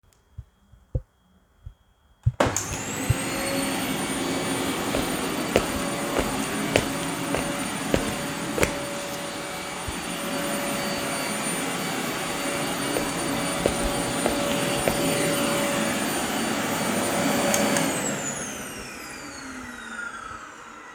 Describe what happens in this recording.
I walked around the living room while vacuuming the floor. The vacuum cleaner and my footsteps were happening at the same time.